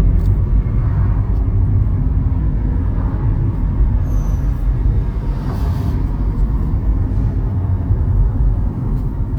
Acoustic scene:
car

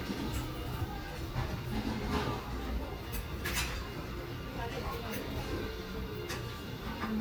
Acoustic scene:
restaurant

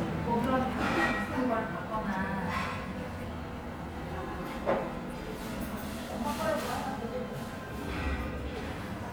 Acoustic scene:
restaurant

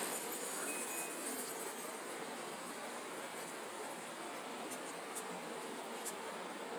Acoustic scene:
residential area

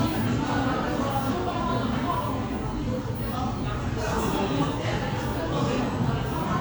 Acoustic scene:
crowded indoor space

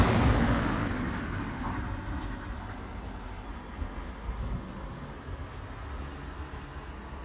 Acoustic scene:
residential area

